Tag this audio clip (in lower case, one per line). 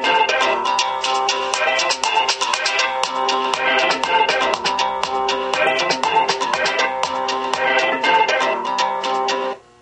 music